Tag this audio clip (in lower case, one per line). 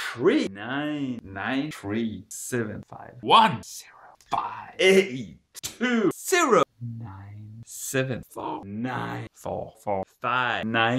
speech
inside a small room